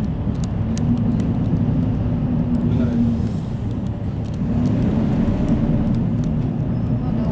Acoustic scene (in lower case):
bus